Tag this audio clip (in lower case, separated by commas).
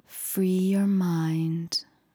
human voice, female speech, speech